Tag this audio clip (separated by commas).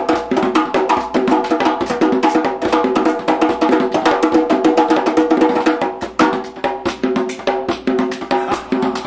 playing djembe